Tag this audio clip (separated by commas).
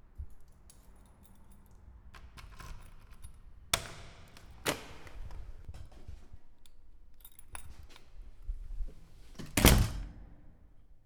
Door, home sounds, Slam